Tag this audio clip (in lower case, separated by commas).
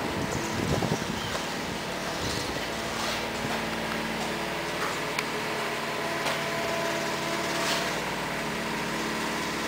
bird, animal